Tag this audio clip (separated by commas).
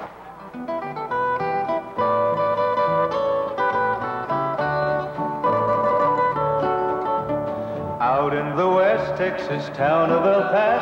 Classical music